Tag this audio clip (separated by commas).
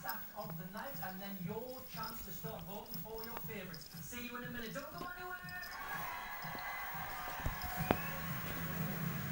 Speech, Music